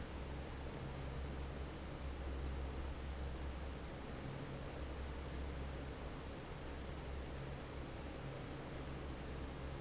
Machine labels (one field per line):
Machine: fan